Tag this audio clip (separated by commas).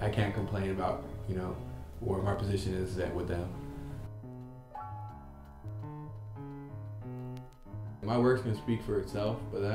Speech, Music